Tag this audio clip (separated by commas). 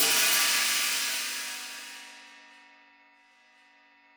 Percussion, Hi-hat, Musical instrument, Music, Cymbal